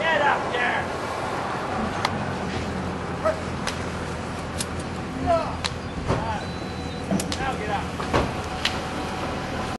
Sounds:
speech

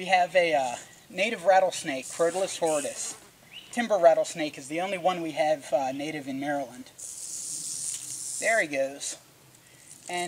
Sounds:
snake

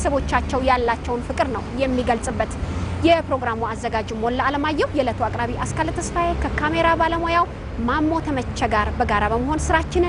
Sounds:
speech

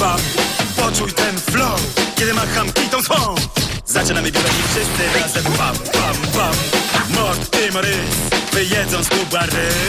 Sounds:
music

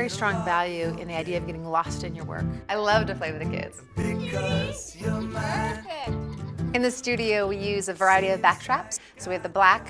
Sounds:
music
speech

